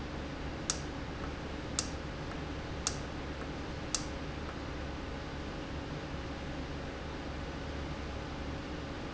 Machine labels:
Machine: valve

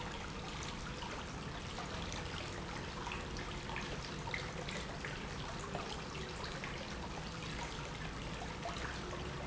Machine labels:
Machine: pump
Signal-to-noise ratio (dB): 0 dB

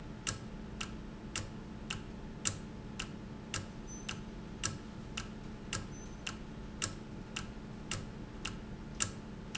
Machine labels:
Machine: valve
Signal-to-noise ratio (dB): 0 dB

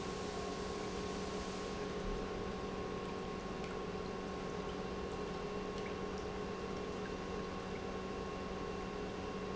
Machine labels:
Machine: pump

